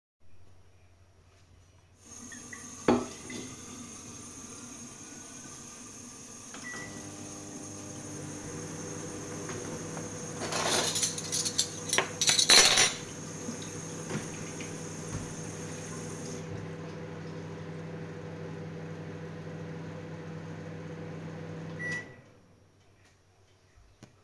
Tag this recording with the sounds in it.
running water, cutlery and dishes, microwave